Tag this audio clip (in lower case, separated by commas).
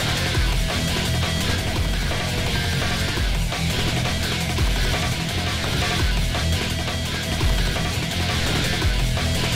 music